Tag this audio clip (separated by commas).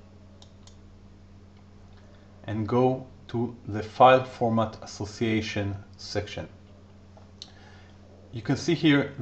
Speech